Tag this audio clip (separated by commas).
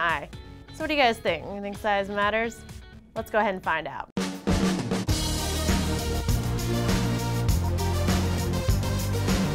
Music, Speech